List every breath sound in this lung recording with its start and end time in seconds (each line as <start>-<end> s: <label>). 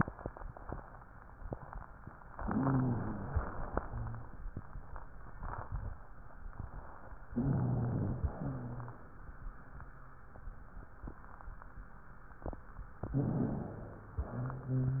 2.35-3.40 s: inhalation
2.35-3.40 s: wheeze
3.40-4.36 s: exhalation
3.78-4.36 s: wheeze
7.29-8.29 s: inhalation
7.29-8.29 s: wheeze
8.33-9.14 s: exhalation
8.33-9.14 s: wheeze
13.05-14.05 s: wheeze
13.05-14.10 s: inhalation
14.21-15.00 s: exhalation
14.21-15.00 s: wheeze